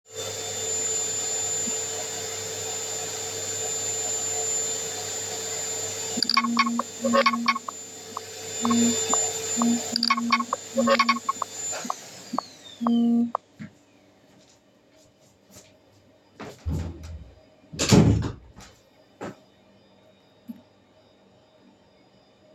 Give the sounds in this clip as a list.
vacuum cleaner, phone ringing, door